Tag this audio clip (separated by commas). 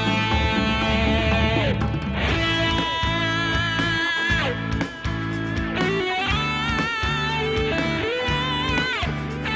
Music